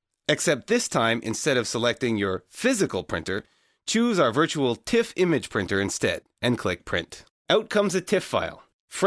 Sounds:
speech

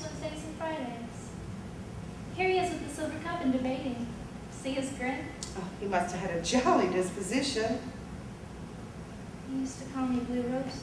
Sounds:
speech

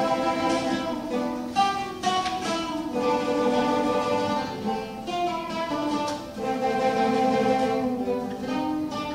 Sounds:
plucked string instrument, musical instrument, acoustic guitar, music, guitar

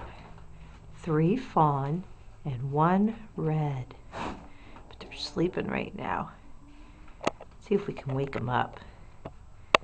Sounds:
speech

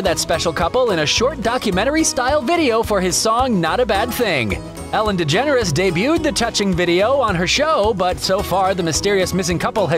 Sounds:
music, speech

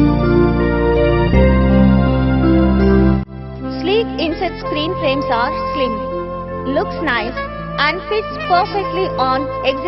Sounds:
music, speech

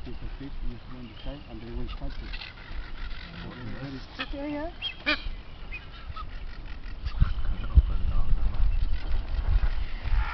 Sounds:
bird, speech

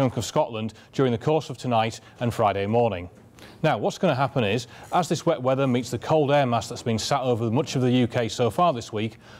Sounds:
speech

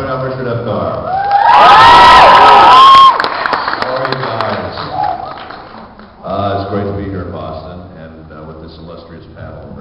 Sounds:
cheering, crowd

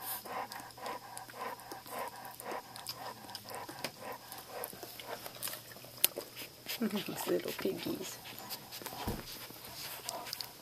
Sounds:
animal, pets, dog, speech

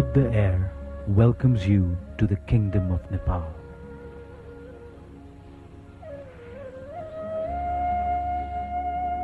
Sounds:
speech, music

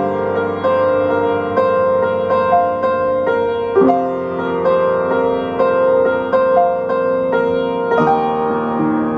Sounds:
music

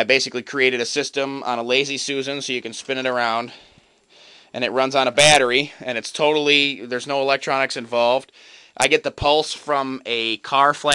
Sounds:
speech

